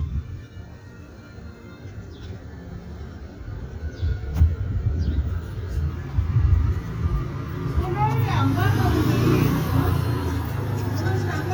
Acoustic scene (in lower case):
residential area